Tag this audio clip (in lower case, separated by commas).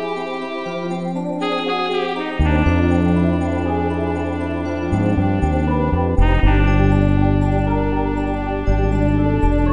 music, theme music